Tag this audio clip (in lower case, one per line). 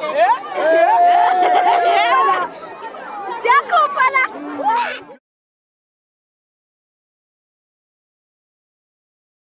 speech